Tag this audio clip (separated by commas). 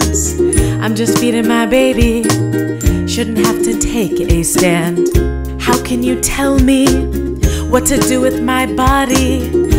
Music, Happy music